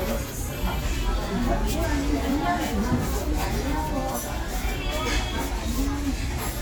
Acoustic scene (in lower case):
restaurant